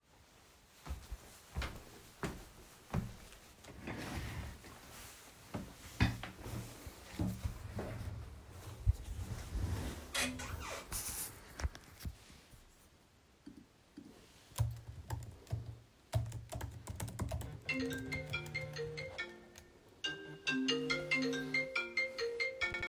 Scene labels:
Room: office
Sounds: footsteps, keyboard typing, phone ringing

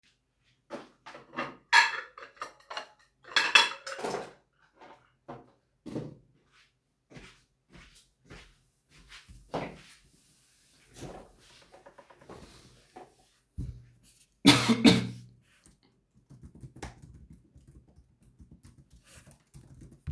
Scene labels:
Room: bedroom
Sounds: cutlery and dishes, footsteps, keyboard typing

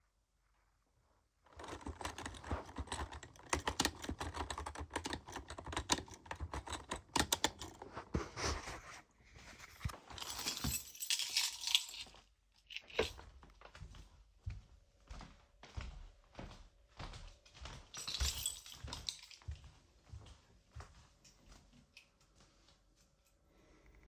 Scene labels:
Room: bedroom, hallway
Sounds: keyboard typing, keys, footsteps

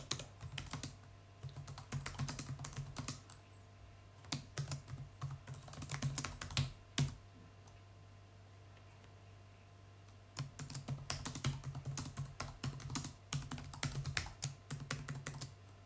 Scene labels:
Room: bedroom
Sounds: keyboard typing

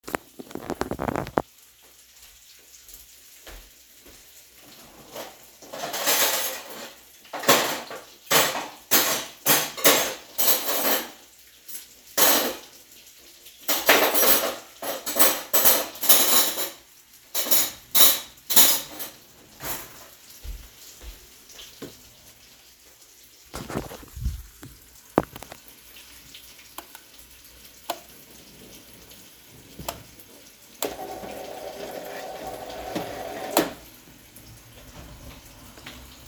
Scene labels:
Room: kitchen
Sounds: footsteps, cutlery and dishes, light switch

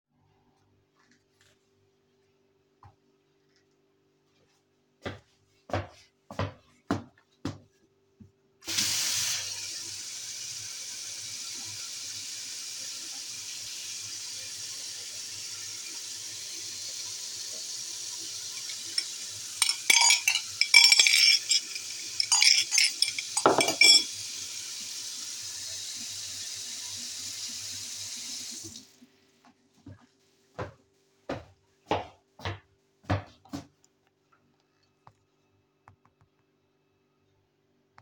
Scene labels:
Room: kitchen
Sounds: footsteps, running water, cutlery and dishes

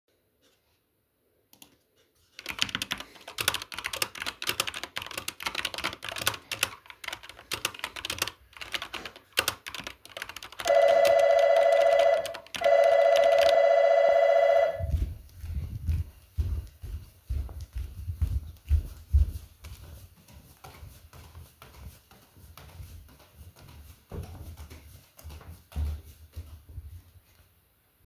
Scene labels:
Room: hallway, living room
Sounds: keyboard typing, bell ringing, footsteps

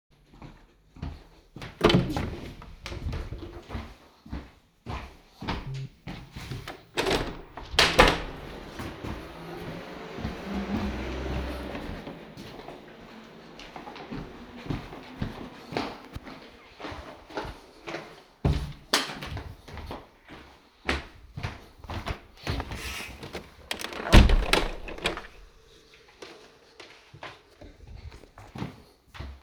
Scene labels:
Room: hallway, living room, bedroom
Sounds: footsteps, door (more than once), phone ringing, window (more than once), light switch

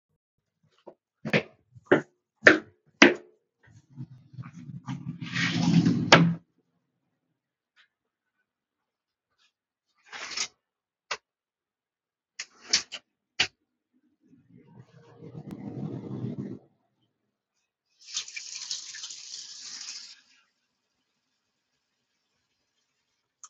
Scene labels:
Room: kitchen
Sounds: footsteps, door, wardrobe or drawer (more than once), running water

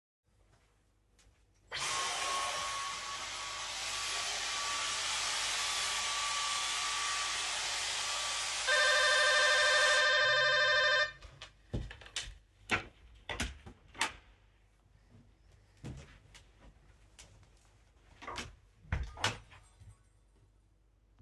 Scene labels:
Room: hallway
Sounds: footsteps, vacuum cleaner, bell ringing, door (more than once)

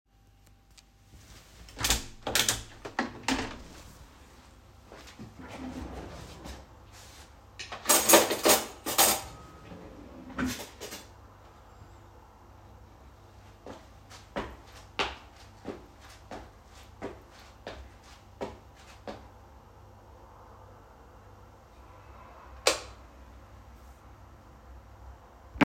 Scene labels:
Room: kitchen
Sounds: window, cutlery and dishes, wardrobe or drawer, footsteps, light switch

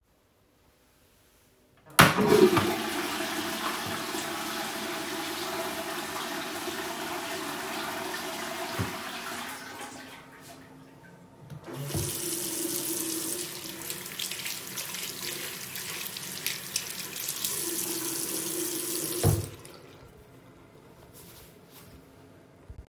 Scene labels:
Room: lavatory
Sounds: toilet flushing, running water

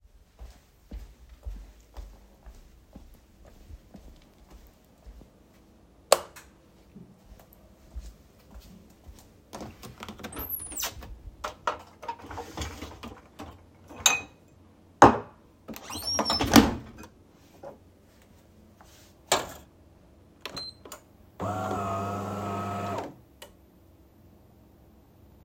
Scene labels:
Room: kitchen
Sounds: footsteps, light switch, cutlery and dishes, coffee machine

